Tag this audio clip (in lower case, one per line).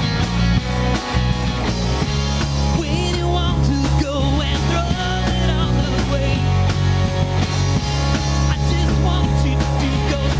singing
music
ska